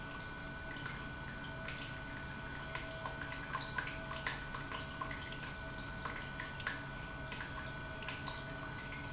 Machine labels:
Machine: pump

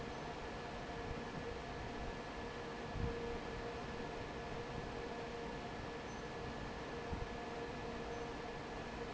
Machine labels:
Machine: fan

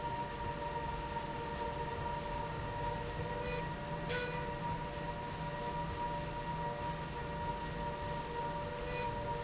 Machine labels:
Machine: slide rail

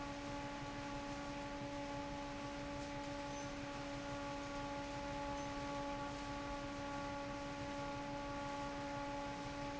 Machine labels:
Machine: fan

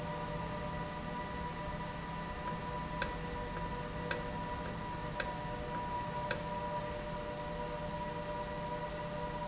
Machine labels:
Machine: valve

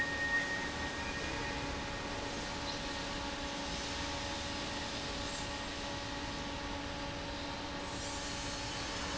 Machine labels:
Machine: fan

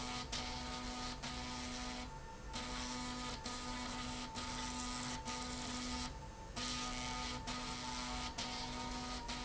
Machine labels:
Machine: slide rail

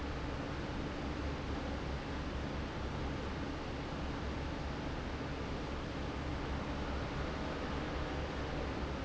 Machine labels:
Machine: fan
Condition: normal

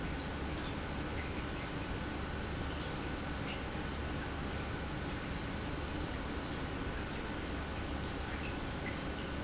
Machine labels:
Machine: pump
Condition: normal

